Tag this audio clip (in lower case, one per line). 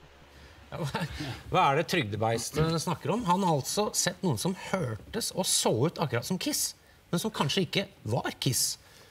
speech